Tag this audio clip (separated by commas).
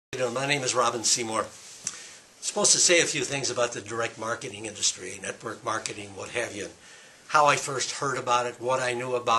Speech